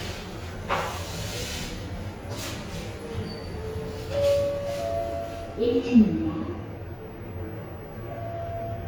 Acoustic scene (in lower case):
elevator